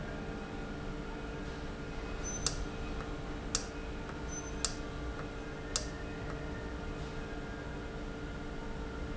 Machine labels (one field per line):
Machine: valve